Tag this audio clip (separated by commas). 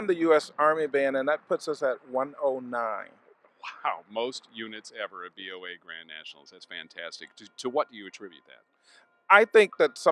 Speech